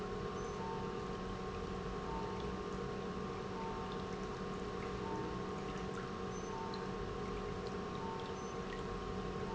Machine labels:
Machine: pump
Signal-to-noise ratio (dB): 0 dB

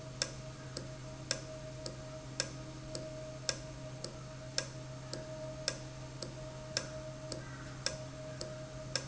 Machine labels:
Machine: valve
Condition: normal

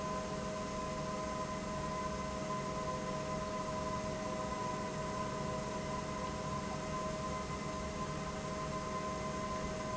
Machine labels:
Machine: pump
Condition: normal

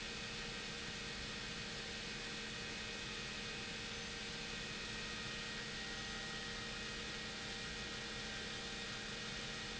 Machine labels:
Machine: pump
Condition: abnormal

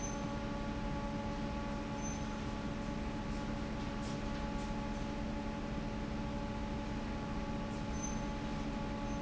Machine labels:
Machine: fan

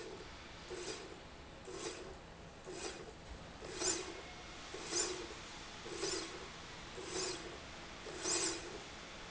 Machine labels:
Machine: slide rail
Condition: normal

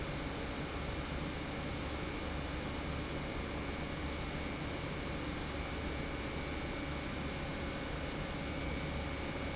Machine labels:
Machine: pump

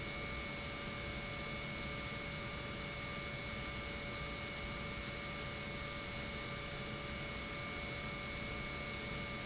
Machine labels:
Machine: pump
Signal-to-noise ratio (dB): 0 dB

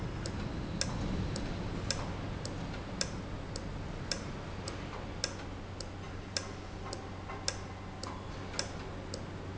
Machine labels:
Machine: valve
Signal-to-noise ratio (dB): -6 dB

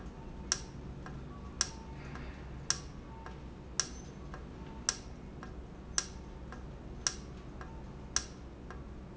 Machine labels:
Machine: valve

